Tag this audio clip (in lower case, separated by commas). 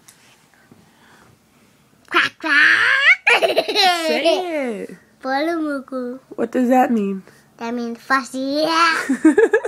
giggle, speech, baby laughter, kid speaking